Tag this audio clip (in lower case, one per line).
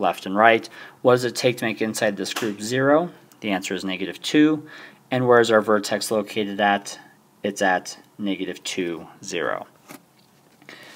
speech